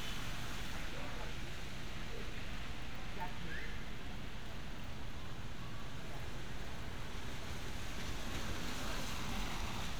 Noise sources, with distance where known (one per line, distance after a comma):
person or small group talking